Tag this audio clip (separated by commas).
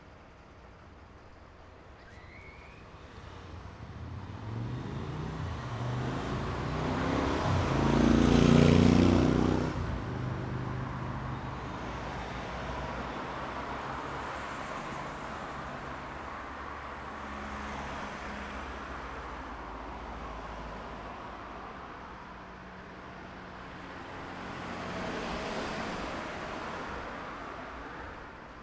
roadway noise, Vehicle, Motor vehicle (road)